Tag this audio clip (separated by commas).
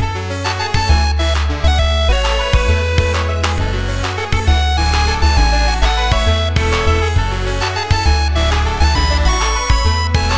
Music